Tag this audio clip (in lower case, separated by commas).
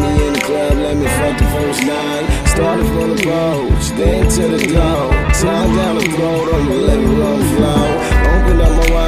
music, soundtrack music, jazz